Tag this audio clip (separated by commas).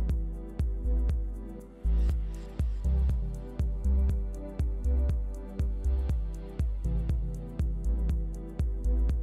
Music